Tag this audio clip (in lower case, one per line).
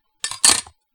silverware
domestic sounds